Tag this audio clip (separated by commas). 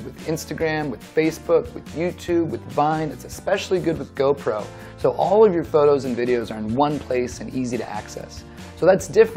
Music, Speech